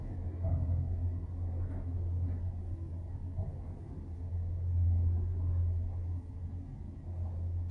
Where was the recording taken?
in an elevator